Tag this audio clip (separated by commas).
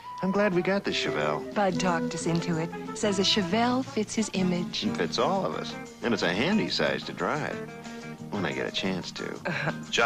Music, Speech